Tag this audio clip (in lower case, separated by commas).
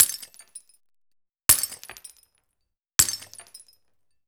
glass, shatter